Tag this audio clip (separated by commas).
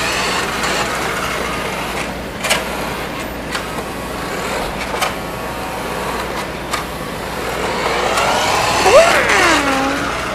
inside a small room